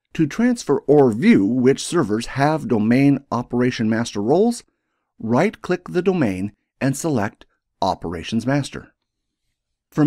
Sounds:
speech

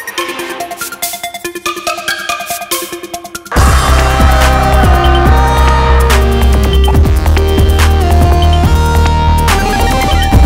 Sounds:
sampler
music

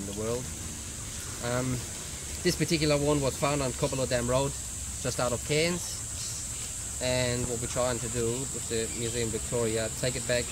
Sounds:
speech

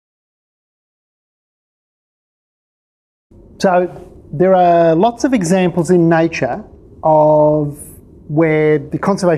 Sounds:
inside a large room or hall
silence
speech

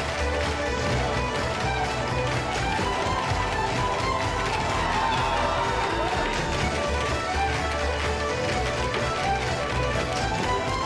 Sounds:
tap dancing

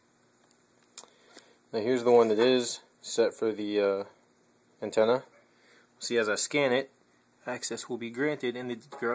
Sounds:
speech

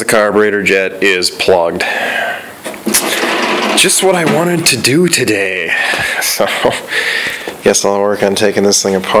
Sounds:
speech

